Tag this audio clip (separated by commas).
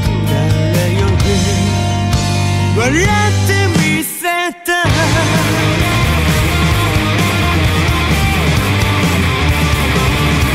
Music